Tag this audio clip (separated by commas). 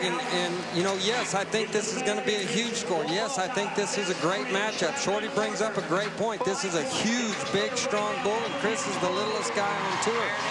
Speech